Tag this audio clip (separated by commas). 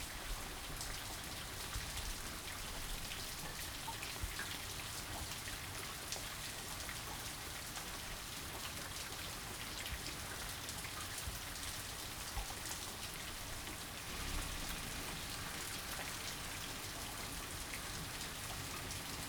Water, Rain